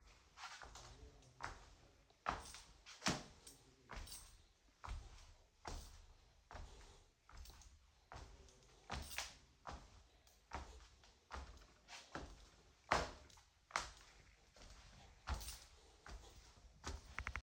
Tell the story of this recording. I was walking around my bedroom while the keys in my pocket were making noise.